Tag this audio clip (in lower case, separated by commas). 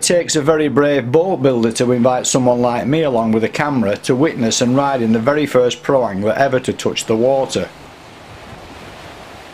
water vehicle, speech